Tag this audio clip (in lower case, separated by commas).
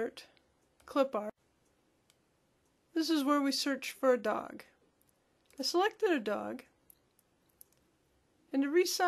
clicking, speech